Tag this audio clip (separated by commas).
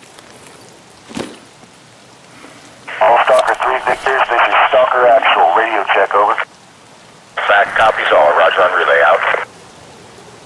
police radio chatter